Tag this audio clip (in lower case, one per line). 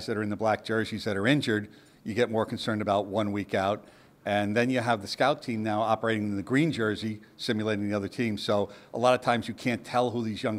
speech